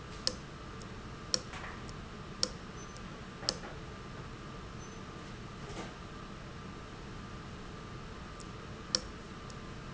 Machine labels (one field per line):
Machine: valve